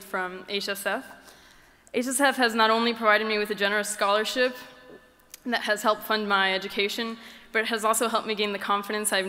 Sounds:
Speech, woman speaking, Narration

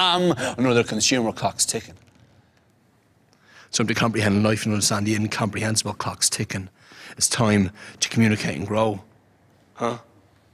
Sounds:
Speech

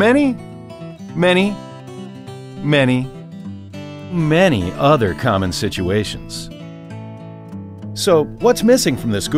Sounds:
Music, Speech

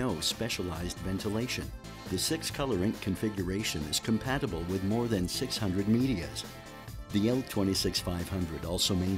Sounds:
Speech, Music

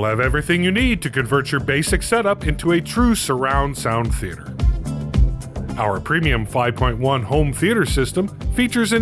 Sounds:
Music, Speech

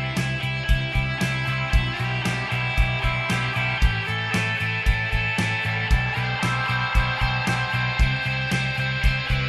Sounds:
Music

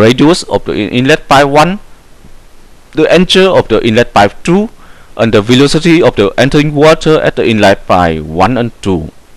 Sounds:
Hum

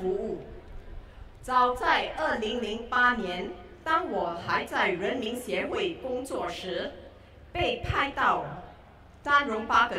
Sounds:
Speech, Female speech, monologue

